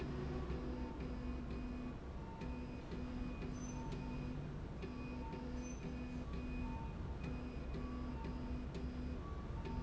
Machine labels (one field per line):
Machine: slide rail